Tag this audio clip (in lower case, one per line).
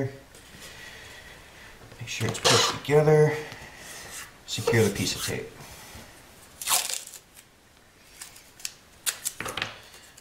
speech